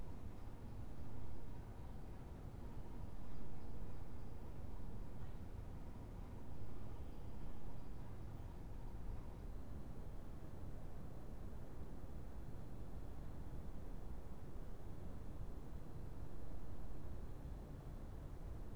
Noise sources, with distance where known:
background noise

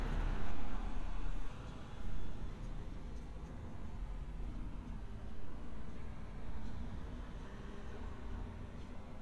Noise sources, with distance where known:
background noise

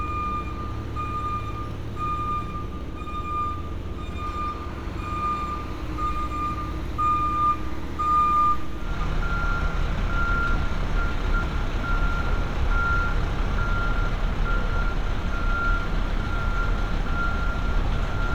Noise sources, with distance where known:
large-sounding engine, near
reverse beeper

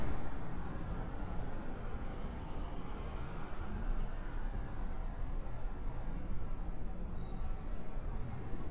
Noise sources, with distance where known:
medium-sounding engine

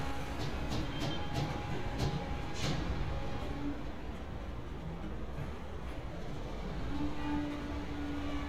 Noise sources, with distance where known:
unidentified impact machinery, near

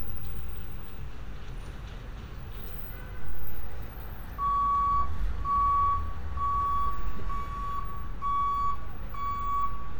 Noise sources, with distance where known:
large-sounding engine, near
car horn, far
reverse beeper, near

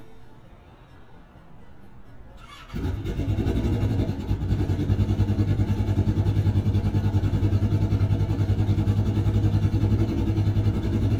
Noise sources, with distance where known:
small-sounding engine, near

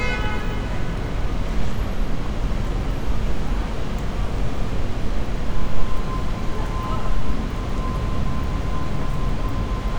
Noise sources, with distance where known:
car horn, near

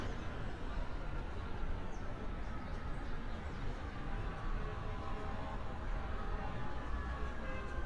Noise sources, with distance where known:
unidentified alert signal, far

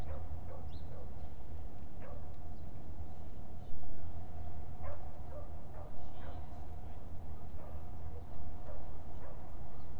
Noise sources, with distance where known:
unidentified human voice, far
dog barking or whining, far

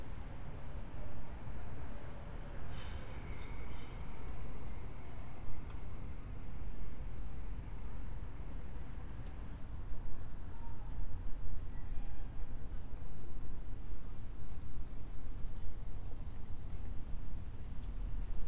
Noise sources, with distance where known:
background noise

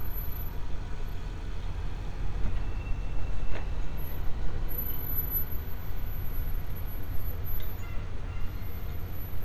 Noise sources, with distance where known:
engine of unclear size

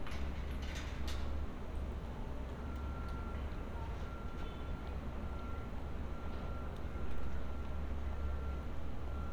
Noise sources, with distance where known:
unidentified alert signal, far
unidentified human voice

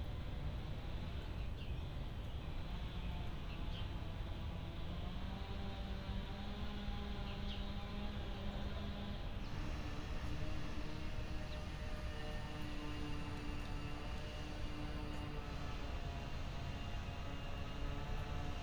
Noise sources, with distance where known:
unidentified powered saw

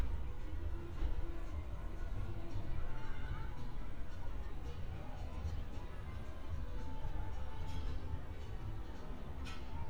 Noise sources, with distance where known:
music from an unclear source, far

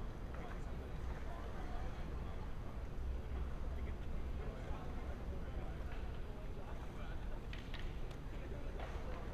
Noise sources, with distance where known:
person or small group talking, far

